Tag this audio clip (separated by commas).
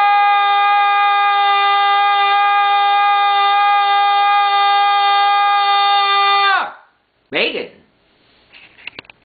Speech